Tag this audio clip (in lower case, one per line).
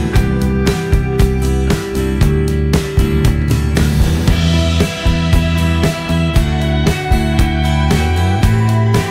music